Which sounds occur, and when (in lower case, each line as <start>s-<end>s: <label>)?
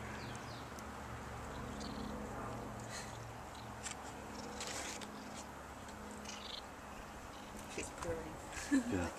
0.0s-9.1s: wind
0.1s-0.2s: tick
0.2s-0.3s: tweet
0.5s-0.7s: tweet
0.7s-0.8s: tick
1.5s-2.1s: purr
1.8s-1.8s: tick
2.7s-2.8s: tick
2.9s-3.3s: cat
3.5s-3.7s: purr
3.5s-3.6s: tick
3.8s-3.9s: tick
4.3s-4.5s: purr
4.5s-5.5s: cat
5.3s-5.4s: tick
5.9s-5.9s: tick
6.2s-6.6s: purr
7.3s-7.7s: cat
7.7s-9.1s: conversation
7.7s-8.3s: woman speaking
8.0s-8.1s: tick
8.4s-8.9s: laughter
8.9s-9.1s: man speaking